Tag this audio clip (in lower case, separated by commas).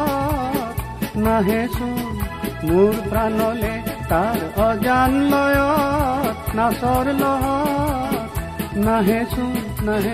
people humming